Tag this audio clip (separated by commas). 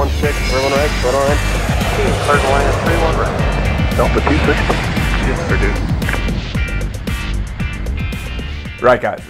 airplane